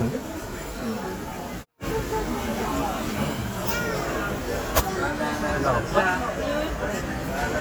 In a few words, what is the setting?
crowded indoor space